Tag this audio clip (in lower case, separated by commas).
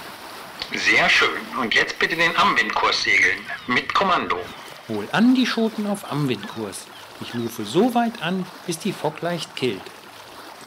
speech